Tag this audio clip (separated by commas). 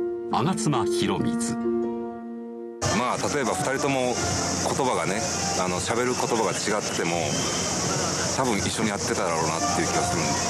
Music, Speech